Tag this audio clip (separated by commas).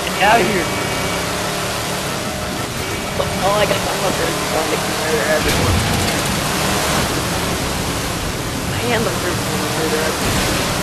Speech, Pink noise